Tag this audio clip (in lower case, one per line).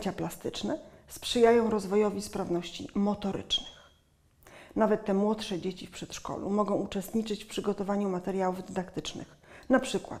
speech